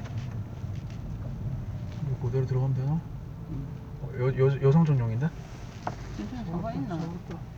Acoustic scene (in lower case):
car